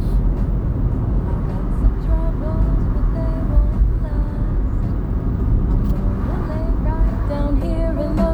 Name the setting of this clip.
car